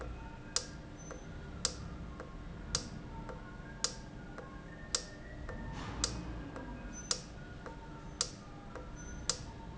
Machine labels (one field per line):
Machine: valve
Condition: normal